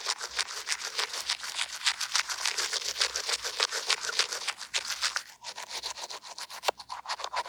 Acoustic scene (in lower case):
restroom